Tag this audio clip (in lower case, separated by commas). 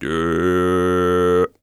human voice, singing, male singing